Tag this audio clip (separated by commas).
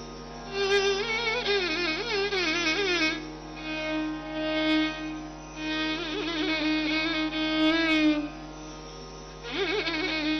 Musical instrument, Music, fiddle